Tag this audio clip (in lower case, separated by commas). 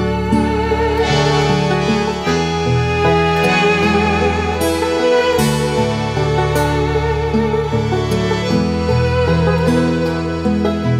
music, background music